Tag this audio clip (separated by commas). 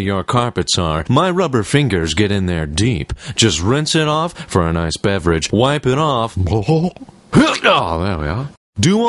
Speech